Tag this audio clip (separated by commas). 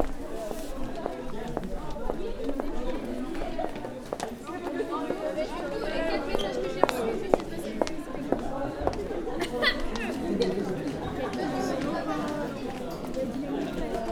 Crowd, Human group actions